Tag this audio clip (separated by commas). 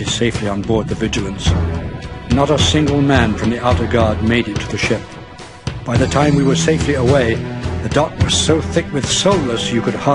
Speech, Music, Narration